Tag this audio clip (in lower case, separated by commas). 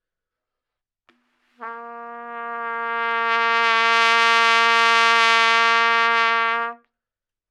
musical instrument, brass instrument, trumpet, music